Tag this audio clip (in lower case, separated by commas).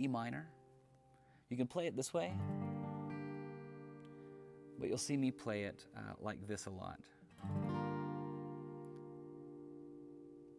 musical instrument, plucked string instrument, guitar, speech, strum, music